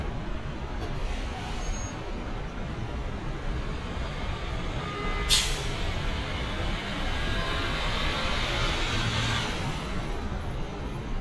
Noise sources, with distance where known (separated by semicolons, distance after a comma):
large-sounding engine, near